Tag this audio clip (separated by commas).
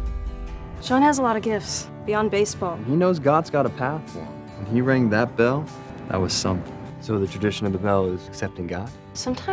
Music, Speech